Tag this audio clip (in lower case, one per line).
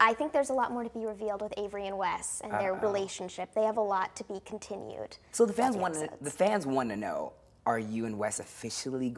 speech